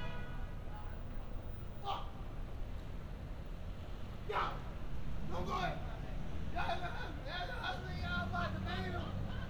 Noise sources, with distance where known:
car horn; person or small group shouting

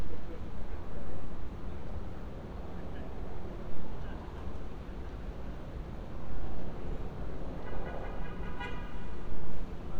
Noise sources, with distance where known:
car horn, far; person or small group talking, far

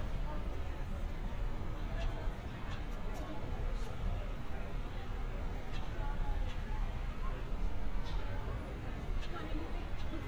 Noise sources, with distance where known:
person or small group talking, far

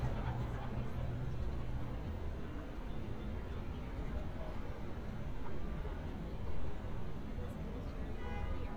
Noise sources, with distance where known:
car horn, far; person or small group talking, far

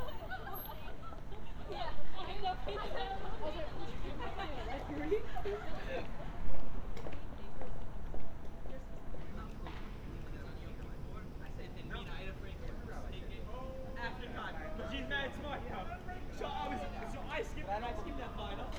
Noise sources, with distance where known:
person or small group talking

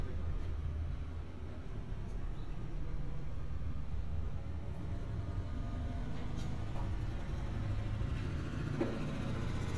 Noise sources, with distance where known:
medium-sounding engine

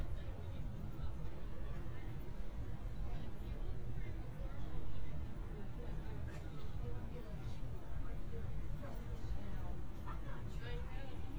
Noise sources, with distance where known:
person or small group talking, far

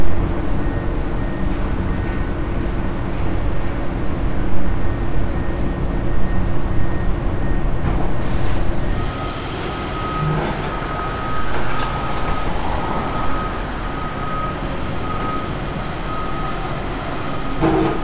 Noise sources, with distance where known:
reverse beeper, far

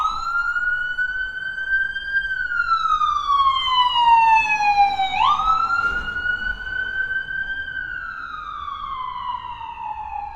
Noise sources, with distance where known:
siren, near

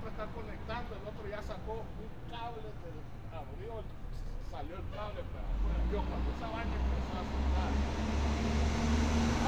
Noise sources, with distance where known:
large-sounding engine, near; person or small group talking, near

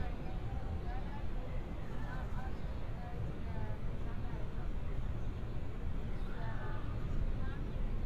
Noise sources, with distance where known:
person or small group talking

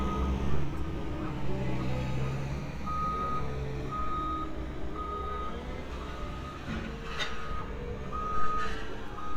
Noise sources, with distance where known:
large-sounding engine; reverse beeper, near

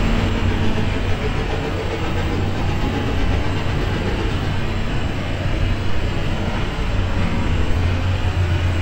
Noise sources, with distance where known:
engine of unclear size, near

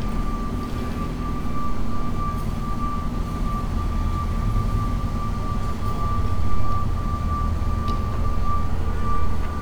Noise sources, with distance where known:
unidentified alert signal

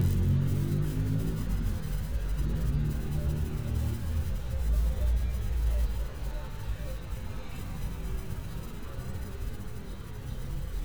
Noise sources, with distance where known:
medium-sounding engine; music from an unclear source

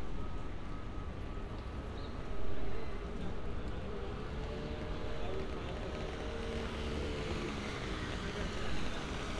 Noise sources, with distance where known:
medium-sounding engine, far; person or small group talking, far

